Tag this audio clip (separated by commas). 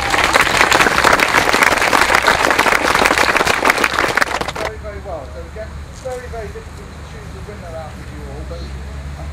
inside a public space, Speech